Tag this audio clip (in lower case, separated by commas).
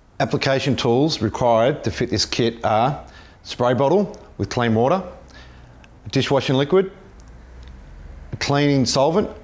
speech